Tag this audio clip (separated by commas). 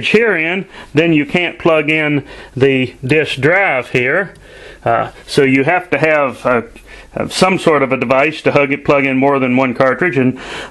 man speaking, Speech